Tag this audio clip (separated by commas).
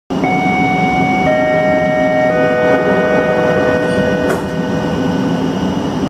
Vehicle